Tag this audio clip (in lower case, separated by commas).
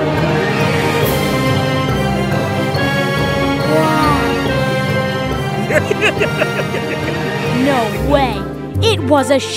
speech, music